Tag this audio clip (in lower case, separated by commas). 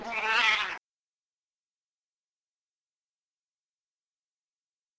cat, meow, pets, animal